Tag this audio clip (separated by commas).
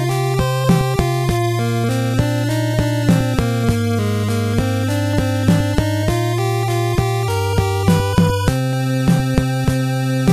Music